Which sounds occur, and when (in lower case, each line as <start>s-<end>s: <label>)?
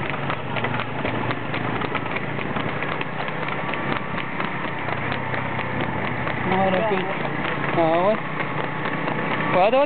0.0s-9.8s: motor vehicle (road)
0.0s-0.4s: clip-clop
0.5s-0.9s: clip-clop
1.0s-1.3s: clip-clop
1.5s-2.2s: clip-clop
2.3s-3.1s: clip-clop
3.1s-3.6s: clip-clop
3.7s-4.0s: clip-clop
4.1s-4.2s: clip-clop
4.4s-5.1s: clip-clop
5.3s-5.4s: clip-clop
5.5s-5.6s: clip-clop
5.8s-5.8s: clip-clop
6.0s-6.1s: clip-clop
6.2s-6.4s: clip-clop
6.4s-7.1s: man speaking
6.5s-6.6s: clip-clop
6.7s-6.8s: clip-clop
6.9s-7.0s: clip-clop
7.2s-7.3s: clip-clop
7.4s-7.7s: clip-clop
7.7s-8.2s: man speaking
7.9s-8.0s: clip-clop
8.1s-8.2s: clip-clop
8.4s-8.5s: clip-clop
8.5s-8.6s: clip-clop
8.8s-8.9s: clip-clop
9.0s-9.1s: clip-clop
9.3s-9.4s: clip-clop
9.5s-9.8s: man speaking